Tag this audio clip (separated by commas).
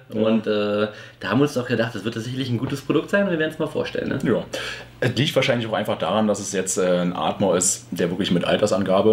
Speech